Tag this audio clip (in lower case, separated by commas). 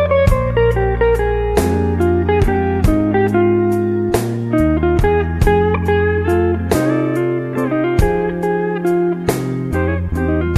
acoustic guitar, music, musical instrument